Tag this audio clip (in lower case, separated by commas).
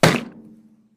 thump